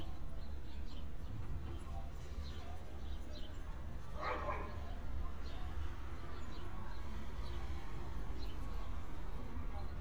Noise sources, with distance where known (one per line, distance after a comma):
dog barking or whining, far